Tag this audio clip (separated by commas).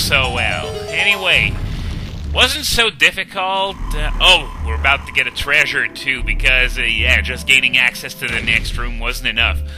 Speech